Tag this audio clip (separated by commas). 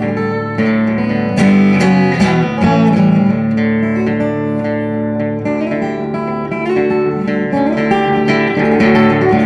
Music